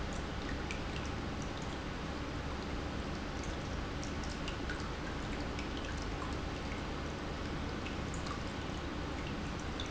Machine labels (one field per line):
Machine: pump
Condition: normal